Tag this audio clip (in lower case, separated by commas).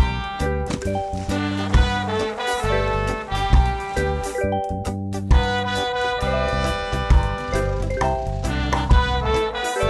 theme music, music